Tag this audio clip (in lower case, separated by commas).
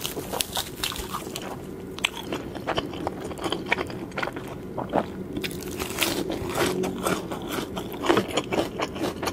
people eating crisps